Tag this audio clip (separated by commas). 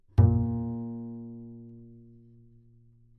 Bowed string instrument, Music, Musical instrument